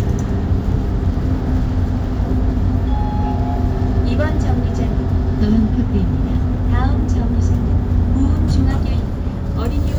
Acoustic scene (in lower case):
bus